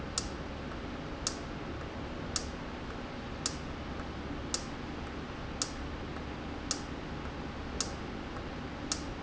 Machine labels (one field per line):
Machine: valve